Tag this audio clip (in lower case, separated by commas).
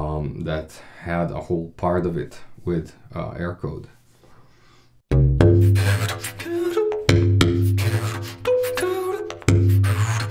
playing didgeridoo